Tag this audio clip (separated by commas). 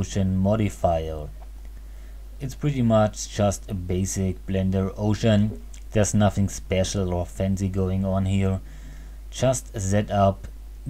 Speech